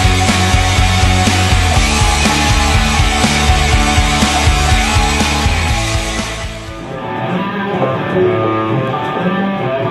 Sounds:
Music

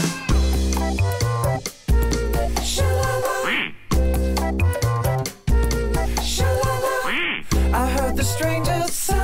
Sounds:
Music

